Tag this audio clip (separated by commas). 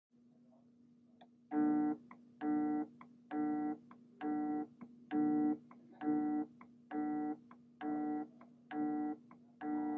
cell phone buzzing